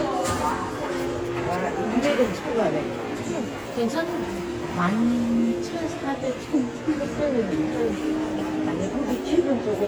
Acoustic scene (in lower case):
subway station